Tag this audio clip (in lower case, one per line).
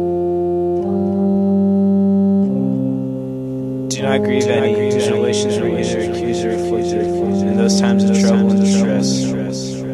music
speech